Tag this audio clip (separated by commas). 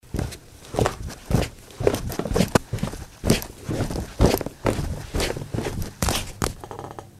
footsteps